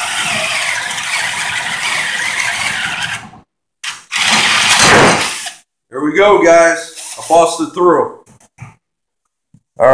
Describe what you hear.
Man speaking over drilling